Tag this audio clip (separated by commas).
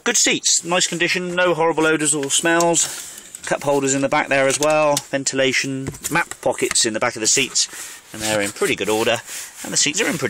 Speech